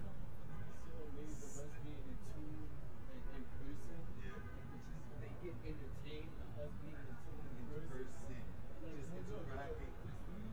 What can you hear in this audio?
person or small group talking